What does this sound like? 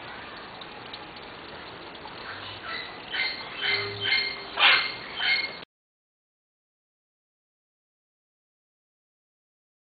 An animal can be heard over the sound of water